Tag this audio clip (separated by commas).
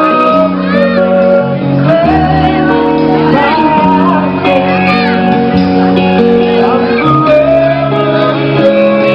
Music, Singing, Orchestra